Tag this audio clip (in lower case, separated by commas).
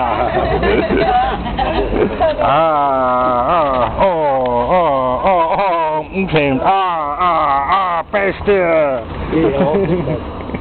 animal, dog, speech